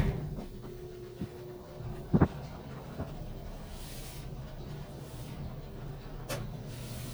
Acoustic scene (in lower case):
elevator